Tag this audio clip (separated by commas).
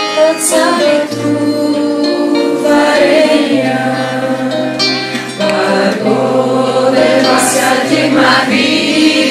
Singing, Vocal music, Music, Musical instrument, Choir, Mantra